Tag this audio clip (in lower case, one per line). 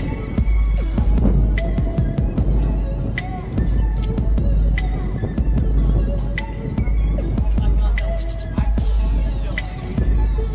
speech
music